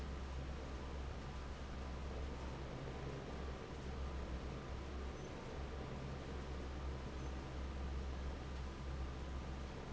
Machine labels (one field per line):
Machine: fan